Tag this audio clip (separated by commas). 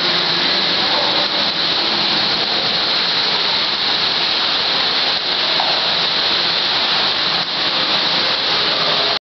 Water